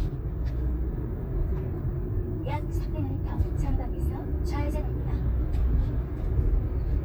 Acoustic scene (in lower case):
car